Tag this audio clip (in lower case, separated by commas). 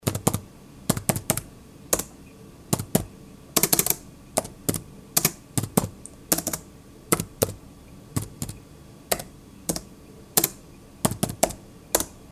computer keyboard, typing, domestic sounds